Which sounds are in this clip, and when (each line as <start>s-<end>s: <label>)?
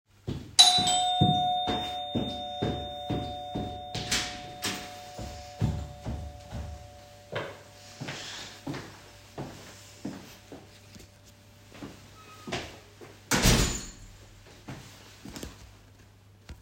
0.2s-16.6s: footsteps
0.5s-8.7s: bell ringing
3.8s-5.1s: door
12.3s-14.1s: door